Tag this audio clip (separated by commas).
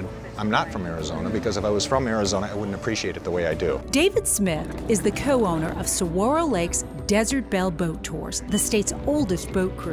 Speech, Music